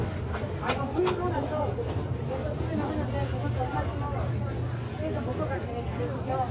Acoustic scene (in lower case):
crowded indoor space